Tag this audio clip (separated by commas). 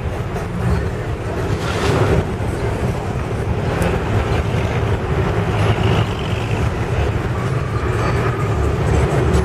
Vehicle, Car